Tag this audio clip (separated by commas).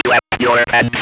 Speech, Human voice